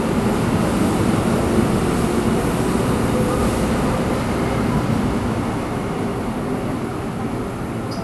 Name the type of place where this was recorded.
subway station